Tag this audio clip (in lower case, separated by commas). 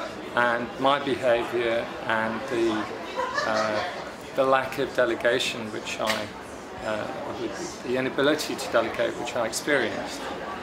inside a large room or hall, speech